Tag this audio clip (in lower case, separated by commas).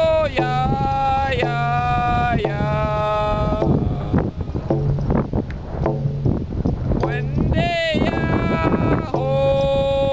music, male singing